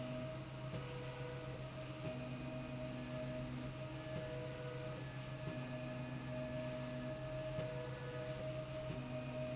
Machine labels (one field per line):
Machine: slide rail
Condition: normal